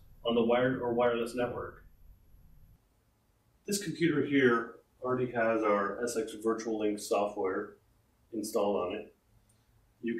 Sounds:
Speech

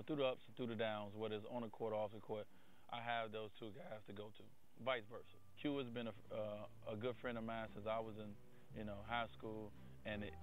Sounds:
Speech

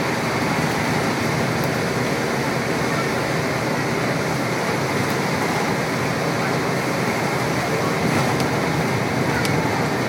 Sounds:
Speech, Vehicle

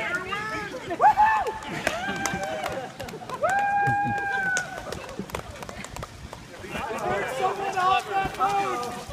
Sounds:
Speech

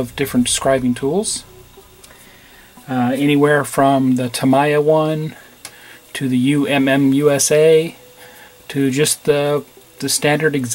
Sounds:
Speech, Music

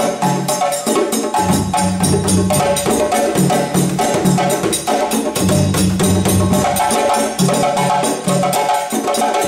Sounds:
playing djembe

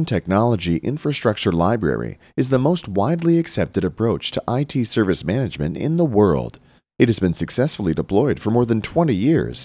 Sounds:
Speech

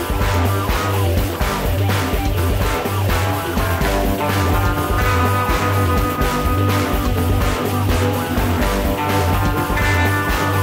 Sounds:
Music

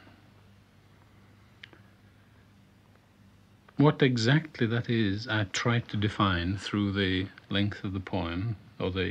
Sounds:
Speech

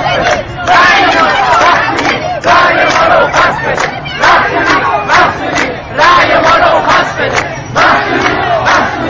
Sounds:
Speech

